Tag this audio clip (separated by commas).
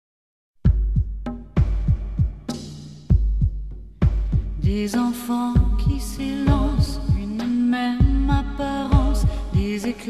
Music